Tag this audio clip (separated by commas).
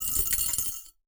Coin (dropping), home sounds